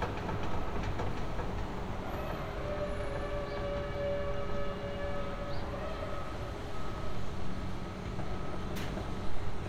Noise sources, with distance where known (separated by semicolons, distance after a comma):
reverse beeper